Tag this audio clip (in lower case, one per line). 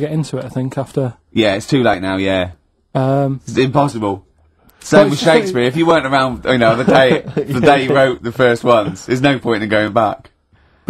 speech